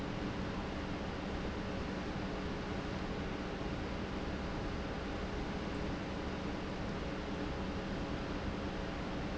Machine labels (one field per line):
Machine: pump